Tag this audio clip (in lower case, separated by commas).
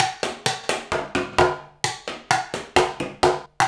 musical instrument, drum kit, percussion, drum, music